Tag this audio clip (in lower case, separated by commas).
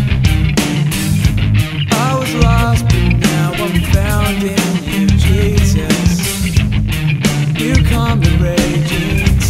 music